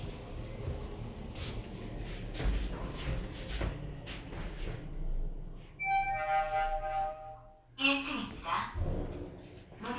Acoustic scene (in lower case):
elevator